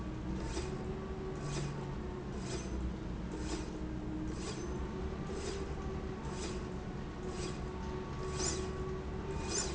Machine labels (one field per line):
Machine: slide rail